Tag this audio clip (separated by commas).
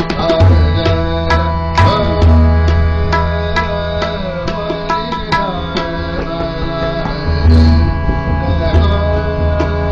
playing tabla